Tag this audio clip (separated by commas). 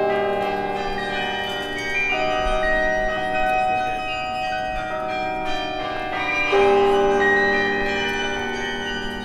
Music